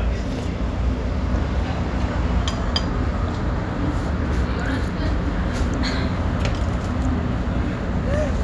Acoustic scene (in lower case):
restaurant